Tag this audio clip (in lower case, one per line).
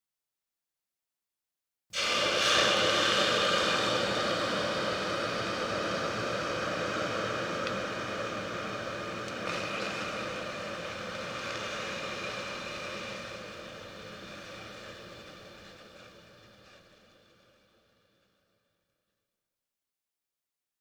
hiss